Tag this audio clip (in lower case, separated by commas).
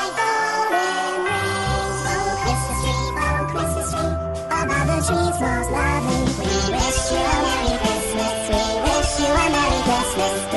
music